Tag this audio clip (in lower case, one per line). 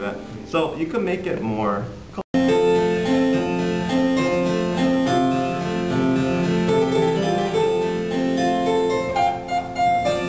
harpsichord
music
speech